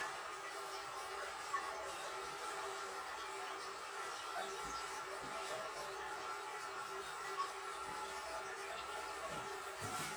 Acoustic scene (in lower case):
restroom